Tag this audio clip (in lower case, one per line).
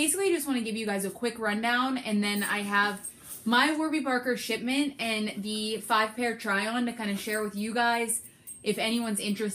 speech